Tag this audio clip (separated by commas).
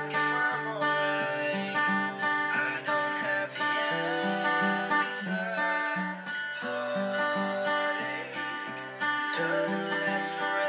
Acoustic guitar, Music, Guitar, Musical instrument, Plucked string instrument